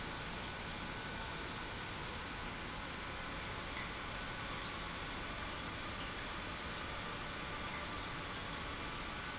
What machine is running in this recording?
pump